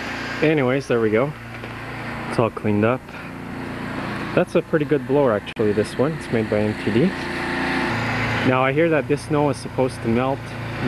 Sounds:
Vehicle, outside, rural or natural, Speech

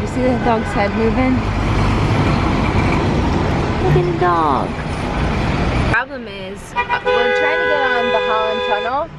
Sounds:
Vehicle

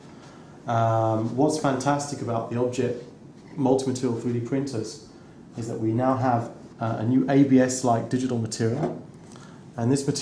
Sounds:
Speech

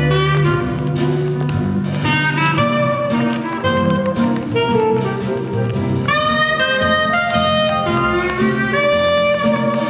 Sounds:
Music, Blues

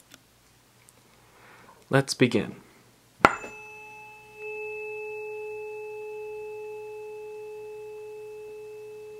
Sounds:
playing tuning fork

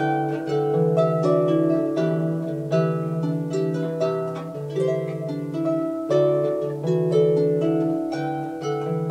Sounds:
Music, Musical instrument, Plucked string instrument, playing harp, Harp

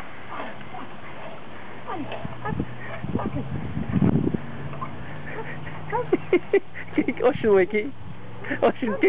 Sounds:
Speech, Dog, Animal, pets

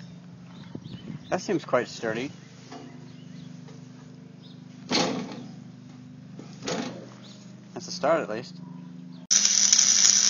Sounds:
Speech

